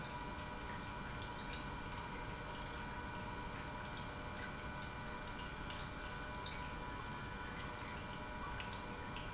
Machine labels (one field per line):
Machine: pump